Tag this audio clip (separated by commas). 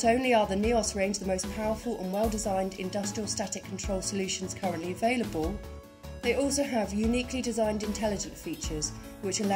Music, Speech